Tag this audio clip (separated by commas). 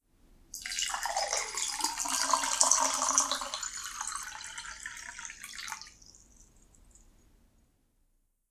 Liquid, Water